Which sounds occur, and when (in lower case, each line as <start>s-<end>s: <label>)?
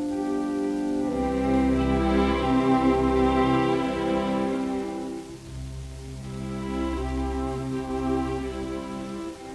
0.0s-9.5s: distortion
0.0s-9.5s: music